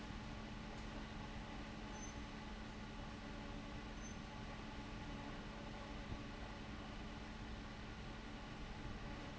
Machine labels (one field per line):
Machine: fan